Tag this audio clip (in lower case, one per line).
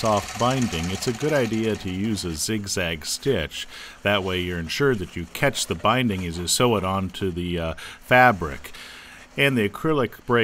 sewing machine
speech
inside a small room